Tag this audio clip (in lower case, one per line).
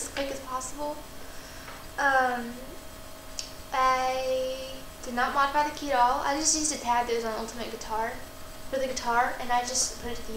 speech